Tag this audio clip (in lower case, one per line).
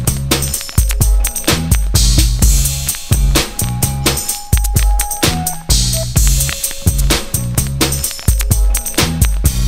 music